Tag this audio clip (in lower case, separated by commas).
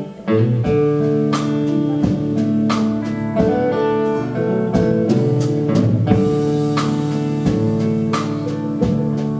music, country